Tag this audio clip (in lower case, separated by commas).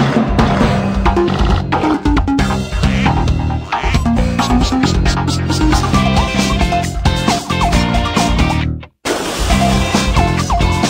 music